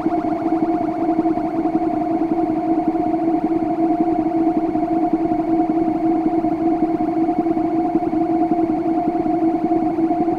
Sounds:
Musical instrument, Music, Synthesizer, playing synthesizer

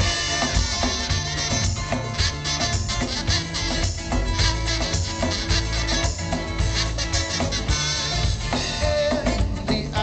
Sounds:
Music

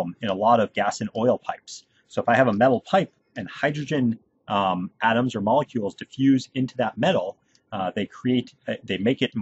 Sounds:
Speech

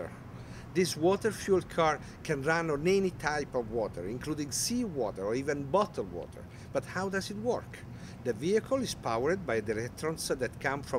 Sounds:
Speech

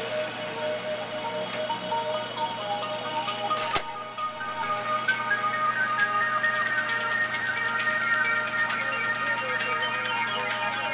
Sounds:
Music, Speech, Spray

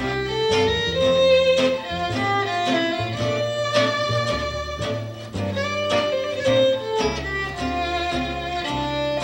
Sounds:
Music, String section, Violin, Guitar

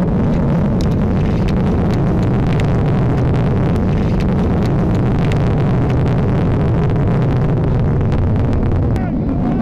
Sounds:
missile launch

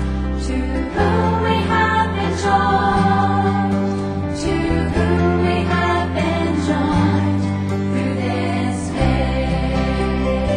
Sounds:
Music

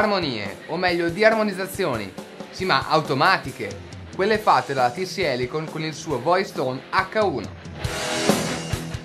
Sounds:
Music, Speech, Soundtrack music

